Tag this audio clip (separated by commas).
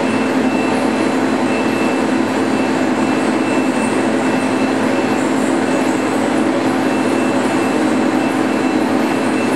Vehicle